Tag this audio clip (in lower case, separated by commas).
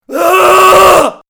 screaming, human voice